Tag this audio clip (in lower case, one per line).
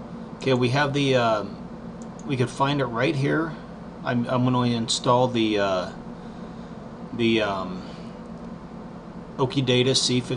speech